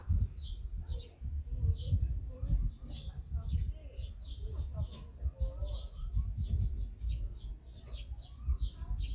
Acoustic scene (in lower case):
park